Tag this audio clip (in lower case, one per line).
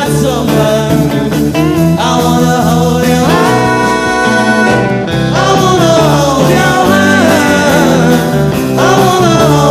music